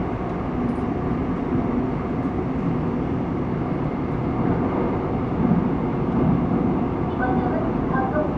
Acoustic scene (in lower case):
subway train